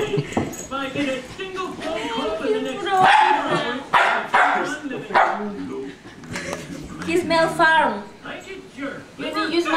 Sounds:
Bow-wow

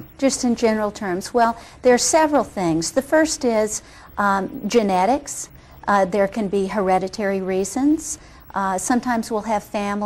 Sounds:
Speech

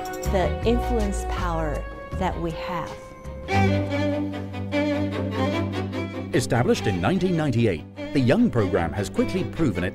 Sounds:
Cello

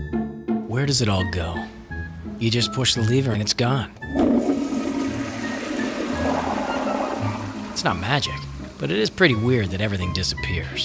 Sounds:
Water, Speech, Music

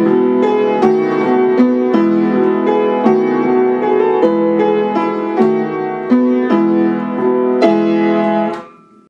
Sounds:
Music

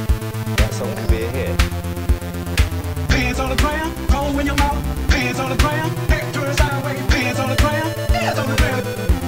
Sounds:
Music, Techno, Electronic music

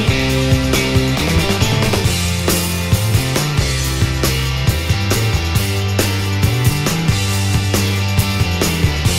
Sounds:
Music

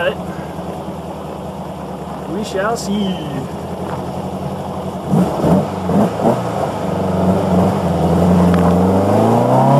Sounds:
Car, Speech, outside, rural or natural, Vehicle, Motor vehicle (road)

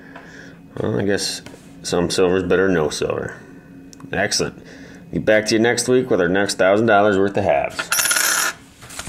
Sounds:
Coin (dropping)

